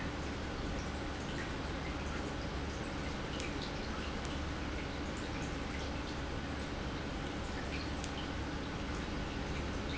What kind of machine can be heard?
pump